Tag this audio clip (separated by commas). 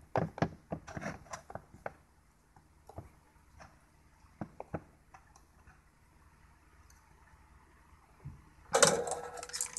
Silence, inside a small room